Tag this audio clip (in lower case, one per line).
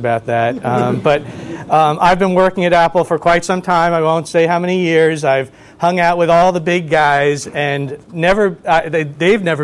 speech